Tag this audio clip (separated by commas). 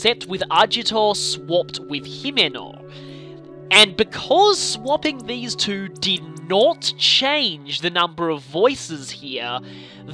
Music, Speech